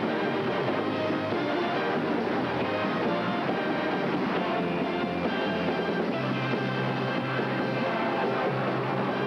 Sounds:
Music, Funny music

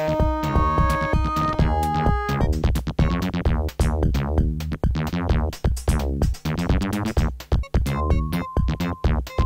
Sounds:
Music, Jingle (music)

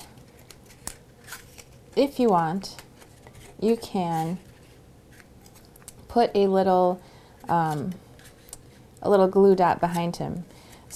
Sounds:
inside a small room, Speech

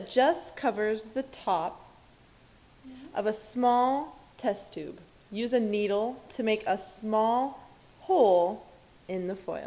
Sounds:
Speech

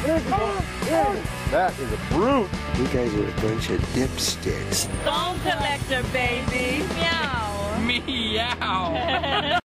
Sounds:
Speech, Music

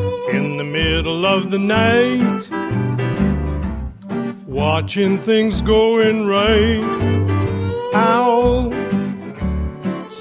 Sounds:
Music

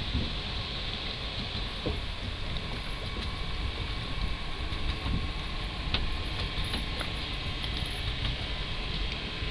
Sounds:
Water

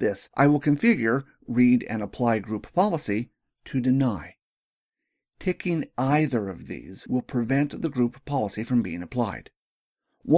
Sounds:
Speech

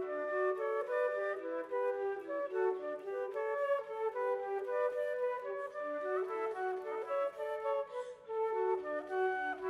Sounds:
Music

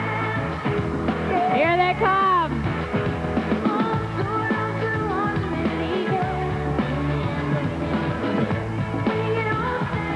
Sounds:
Music, Speech, Female singing

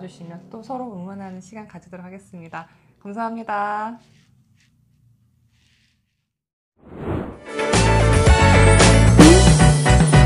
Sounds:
running electric fan

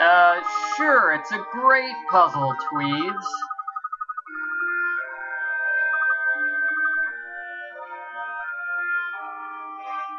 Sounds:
Speech, Music

